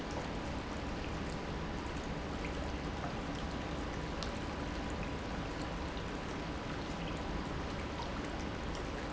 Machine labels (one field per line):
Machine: pump